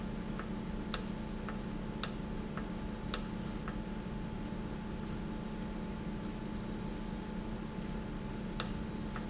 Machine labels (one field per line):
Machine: valve